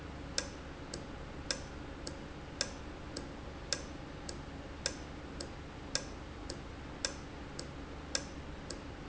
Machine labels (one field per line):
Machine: valve